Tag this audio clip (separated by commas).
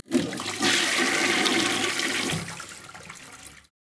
home sounds, Water, Toilet flush